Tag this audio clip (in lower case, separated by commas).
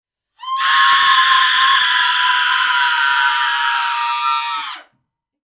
screaming, human voice